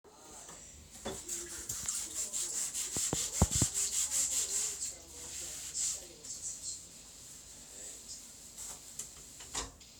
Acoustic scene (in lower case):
kitchen